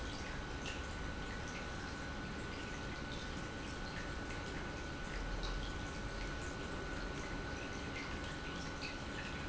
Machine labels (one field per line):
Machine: pump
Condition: normal